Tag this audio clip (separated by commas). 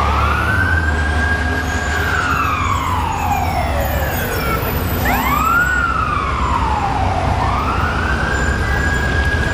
Vehicle